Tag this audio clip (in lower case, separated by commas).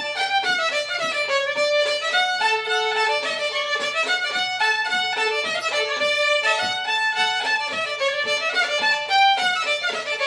fiddle, music, musical instrument